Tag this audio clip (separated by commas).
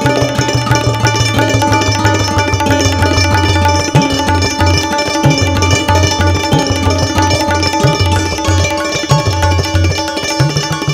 playing tabla